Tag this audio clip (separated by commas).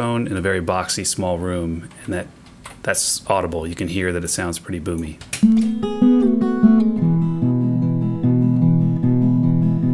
Plucked string instrument, Guitar, Acoustic guitar, Speech, Music, Musical instrument